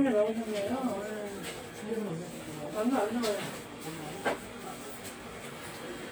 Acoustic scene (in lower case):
crowded indoor space